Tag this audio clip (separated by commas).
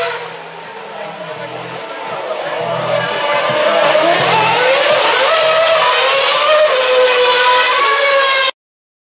Music, Speech